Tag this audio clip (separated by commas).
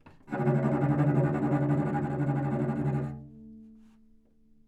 Bowed string instrument, Music, Musical instrument